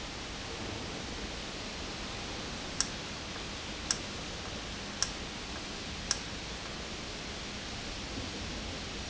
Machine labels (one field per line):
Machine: valve